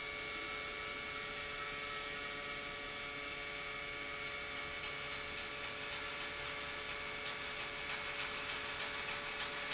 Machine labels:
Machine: pump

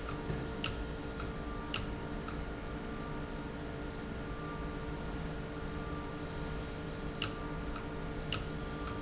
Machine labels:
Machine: valve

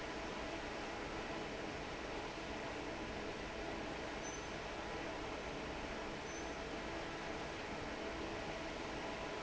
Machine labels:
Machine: fan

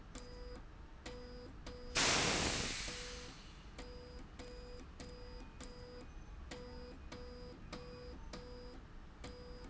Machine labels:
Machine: slide rail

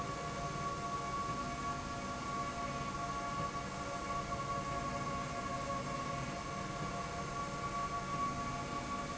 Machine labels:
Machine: slide rail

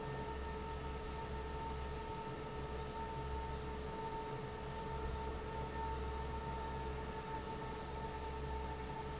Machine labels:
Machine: fan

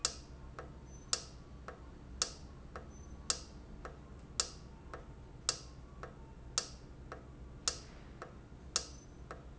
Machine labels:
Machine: valve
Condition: normal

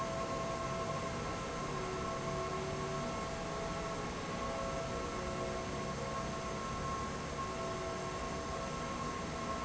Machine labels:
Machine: fan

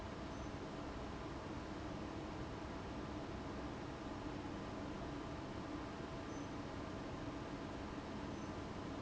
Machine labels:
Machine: fan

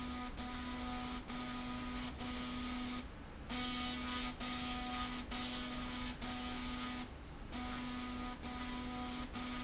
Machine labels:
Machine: slide rail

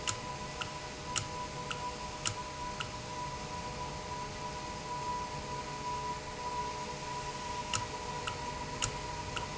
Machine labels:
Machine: valve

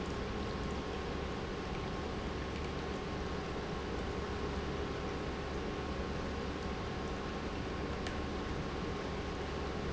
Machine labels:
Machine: pump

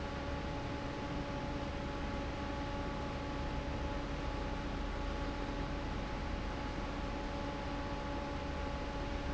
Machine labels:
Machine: fan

